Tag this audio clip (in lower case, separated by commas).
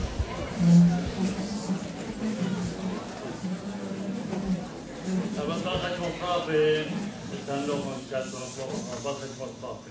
man speaking, speech